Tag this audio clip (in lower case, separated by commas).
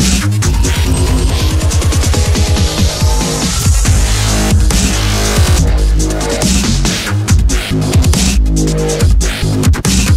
music, electronic music, dubstep